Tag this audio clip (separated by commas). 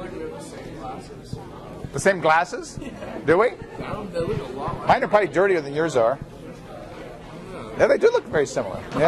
Speech